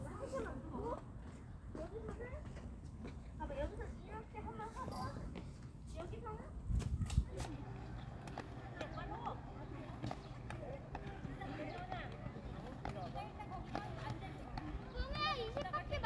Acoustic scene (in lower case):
park